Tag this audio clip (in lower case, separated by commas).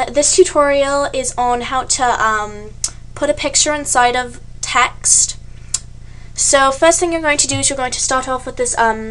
speech